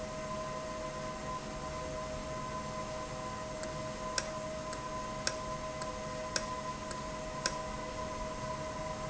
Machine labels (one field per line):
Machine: valve